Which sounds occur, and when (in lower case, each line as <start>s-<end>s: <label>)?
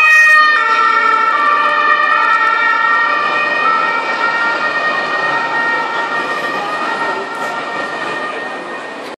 0.0s-9.1s: police car (siren)
0.0s-9.1s: traffic noise
6.5s-8.4s: speech